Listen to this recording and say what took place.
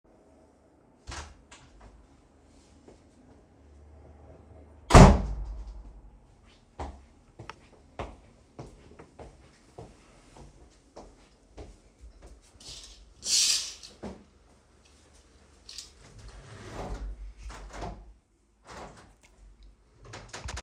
I opened the door,entered,closed the door,walked to the window,opened the curtains and open the window.